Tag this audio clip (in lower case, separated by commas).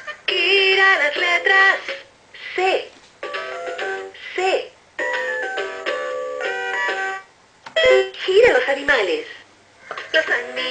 speech, music